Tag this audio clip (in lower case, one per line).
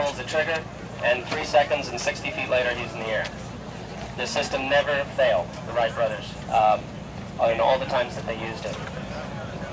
speech